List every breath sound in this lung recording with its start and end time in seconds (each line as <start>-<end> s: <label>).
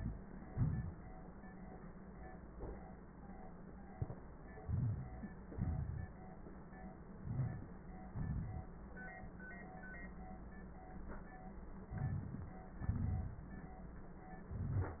0.46-1.14 s: exhalation
4.62-5.46 s: inhalation
5.48-6.13 s: exhalation
5.48-6.13 s: crackles
7.20-8.11 s: inhalation
7.20-8.11 s: crackles
8.10-8.74 s: exhalation
8.12-8.74 s: crackles
11.87-12.71 s: inhalation
12.71-13.56 s: exhalation
12.71-13.56 s: crackles